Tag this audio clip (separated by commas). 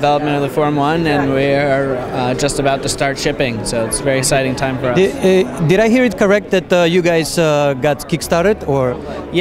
Speech, inside a public space